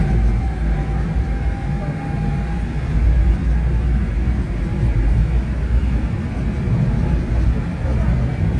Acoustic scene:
subway train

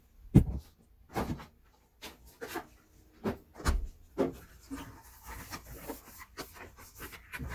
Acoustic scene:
kitchen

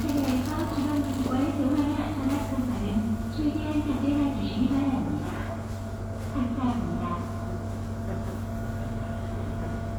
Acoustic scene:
subway station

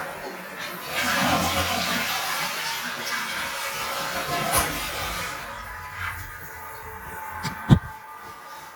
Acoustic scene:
restroom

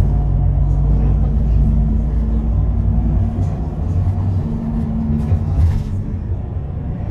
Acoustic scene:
bus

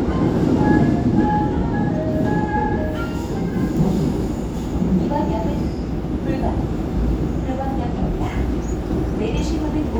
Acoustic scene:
subway train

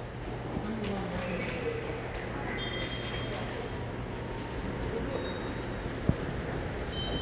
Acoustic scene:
subway station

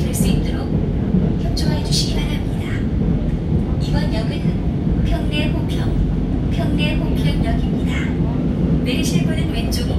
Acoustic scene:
subway train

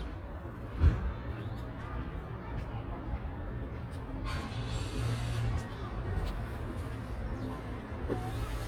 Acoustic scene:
residential area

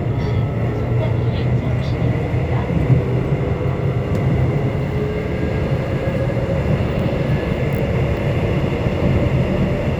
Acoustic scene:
subway train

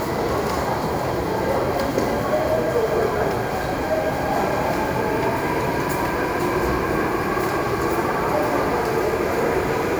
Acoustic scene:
subway station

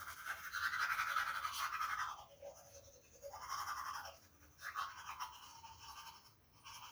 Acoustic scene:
restroom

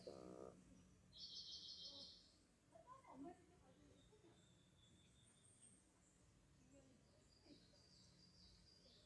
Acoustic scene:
park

